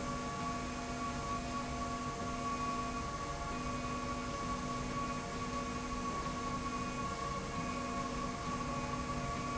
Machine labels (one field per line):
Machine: slide rail